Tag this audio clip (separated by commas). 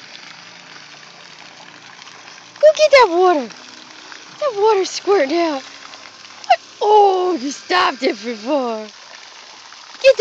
Speech